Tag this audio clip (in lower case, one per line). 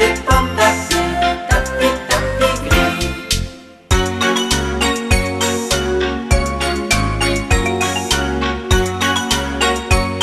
music